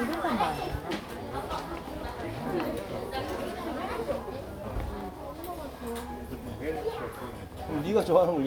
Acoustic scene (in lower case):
crowded indoor space